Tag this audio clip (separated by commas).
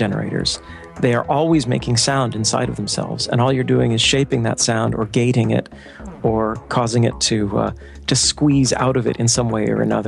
Speech, Music